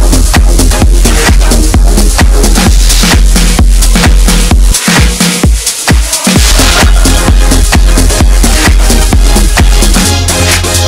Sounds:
music

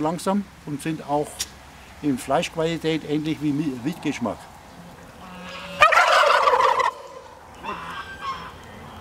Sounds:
turkey gobbling

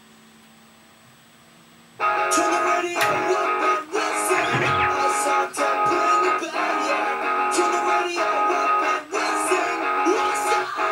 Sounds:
music

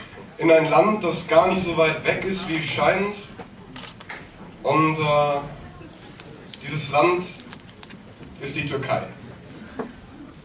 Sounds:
speech

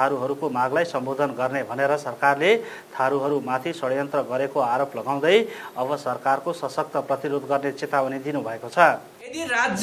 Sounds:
speech

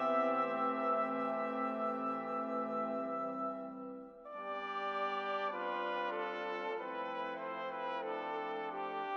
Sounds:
music

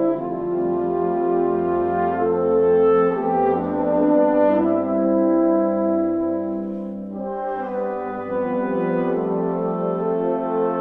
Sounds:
music
brass instrument

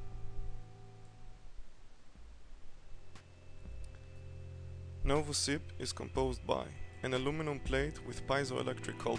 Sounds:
speech
music

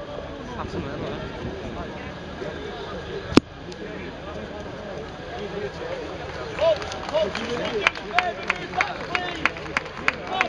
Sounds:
speech

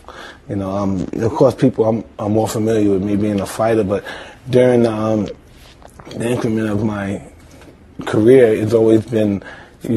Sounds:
speech

